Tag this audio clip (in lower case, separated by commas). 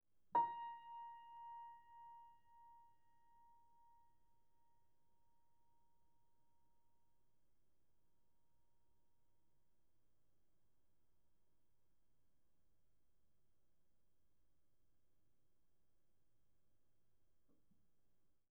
music, piano, keyboard (musical), musical instrument